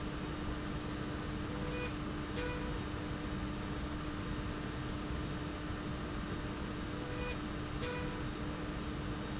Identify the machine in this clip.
slide rail